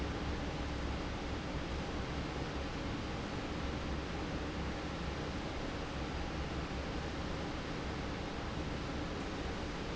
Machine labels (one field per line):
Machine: fan